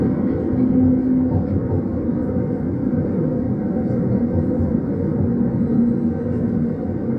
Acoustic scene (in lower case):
subway train